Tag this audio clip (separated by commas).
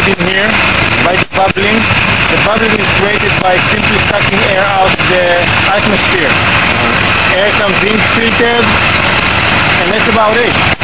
Vehicle, Speech